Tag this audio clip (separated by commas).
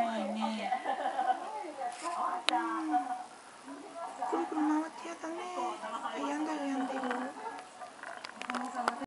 Speech